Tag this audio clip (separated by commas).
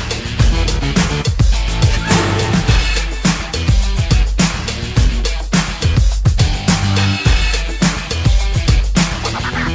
Music